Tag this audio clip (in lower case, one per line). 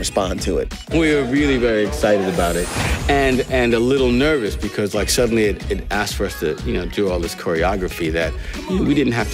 speech
music